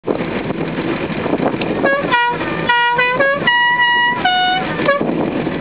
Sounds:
Vehicle

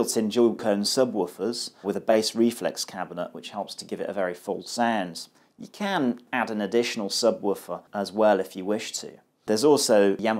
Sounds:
Speech

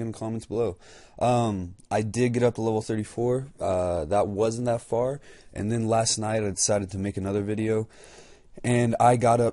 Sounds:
Speech

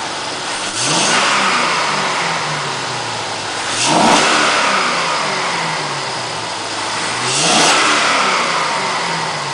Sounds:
Engine, Vehicle, Accelerating

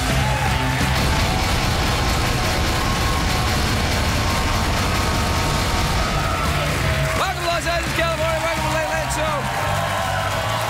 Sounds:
Narration, Music, Speech

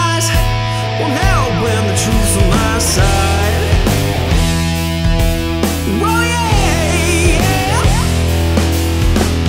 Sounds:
Music, Punk rock, Heavy metal

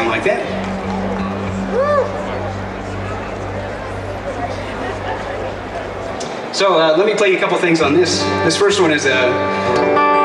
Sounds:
Musical instrument, Guitar, Music, Speech, Plucked string instrument

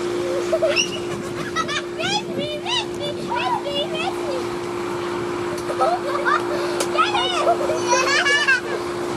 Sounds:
outside, urban or man-made, Speech, Child speech

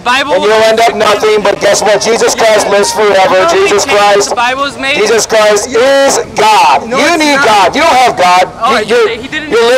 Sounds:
Speech

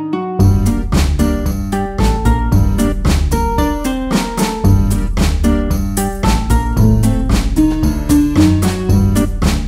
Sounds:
Jingle

